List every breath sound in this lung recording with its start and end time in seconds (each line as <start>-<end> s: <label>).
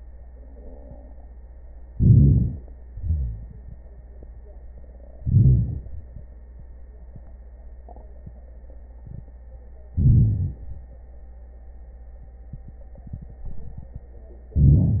1.96-2.57 s: inhalation
2.90-3.48 s: wheeze
2.90-3.78 s: exhalation
5.21-5.79 s: inhalation
9.99-10.57 s: inhalation
14.55-15.00 s: inhalation